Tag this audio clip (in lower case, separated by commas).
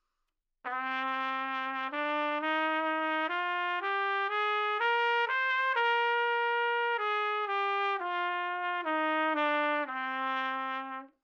trumpet, music, musical instrument, brass instrument